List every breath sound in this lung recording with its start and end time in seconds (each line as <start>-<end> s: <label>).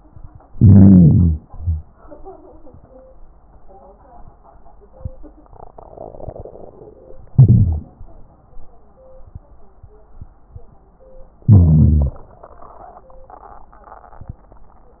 0.48-1.38 s: inhalation
1.44-1.82 s: exhalation
7.34-7.90 s: inhalation
7.34-7.90 s: crackles
11.49-12.14 s: inhalation